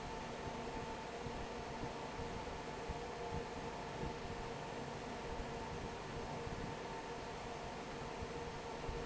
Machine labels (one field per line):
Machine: fan